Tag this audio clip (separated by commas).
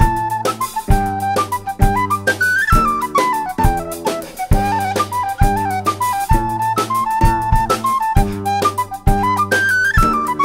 Music